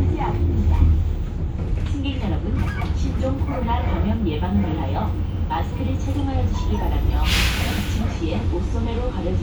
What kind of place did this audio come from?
bus